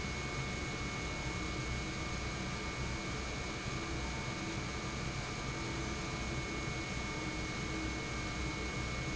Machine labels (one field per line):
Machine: pump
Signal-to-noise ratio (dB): -6 dB